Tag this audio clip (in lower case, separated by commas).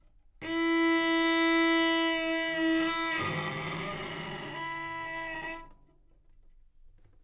bowed string instrument, musical instrument, music